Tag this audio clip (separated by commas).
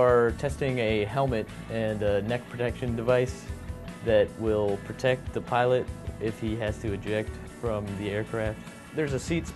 Music, Speech